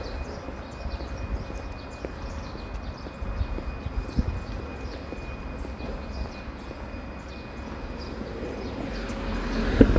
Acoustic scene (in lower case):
residential area